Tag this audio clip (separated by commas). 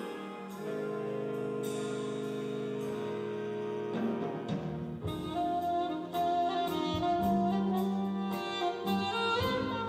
playing saxophone